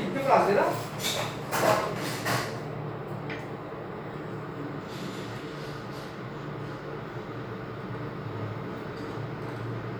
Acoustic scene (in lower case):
elevator